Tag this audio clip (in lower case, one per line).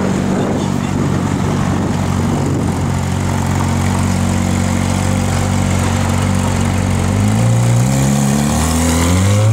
vehicle
traffic noise
car